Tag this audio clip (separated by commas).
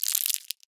crinkling